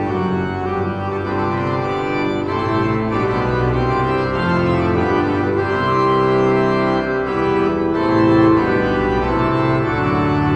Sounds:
playing electronic organ

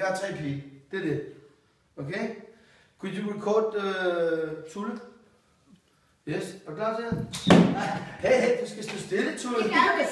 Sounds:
Speech

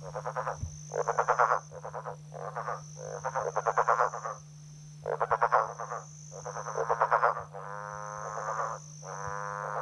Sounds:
Frog

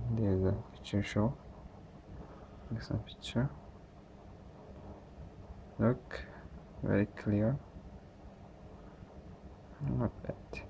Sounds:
Speech

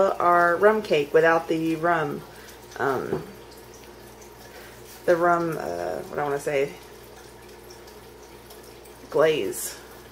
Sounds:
Speech

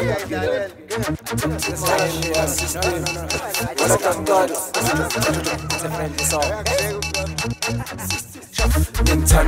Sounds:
Music

